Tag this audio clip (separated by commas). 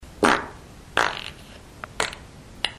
Fart